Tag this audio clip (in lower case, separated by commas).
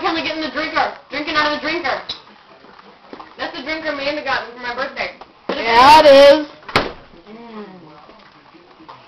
inside a large room or hall, speech